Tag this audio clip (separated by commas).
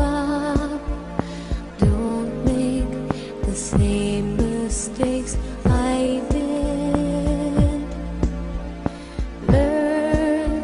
Music